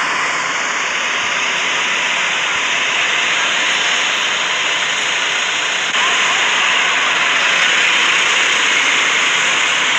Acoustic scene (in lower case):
street